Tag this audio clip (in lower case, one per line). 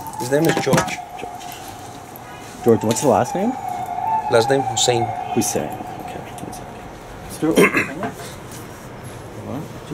speech